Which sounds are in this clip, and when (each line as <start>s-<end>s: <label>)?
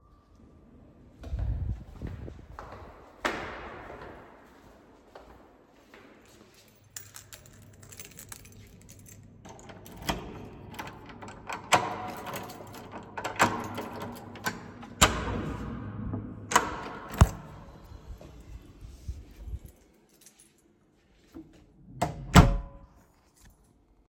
1.2s-6.8s: footsteps
6.9s-9.4s: keys
10.0s-10.2s: door
10.7s-17.4s: door
12.4s-12.9s: keys
13.6s-14.0s: keys
19.4s-19.6s: keys
19.6s-21.0s: keys
21.9s-22.8s: door
23.1s-23.7s: keys